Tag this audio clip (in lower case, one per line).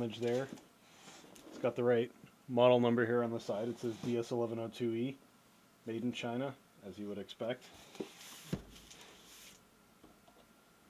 speech